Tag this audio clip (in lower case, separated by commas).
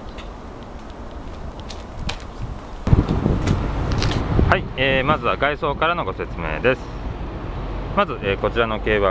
speech